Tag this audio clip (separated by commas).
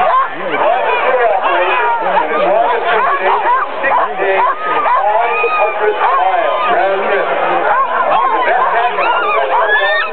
Speech, Bow-wow, Animal, Domestic animals, Dog